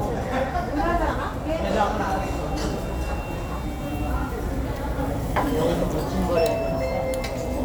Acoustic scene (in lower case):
restaurant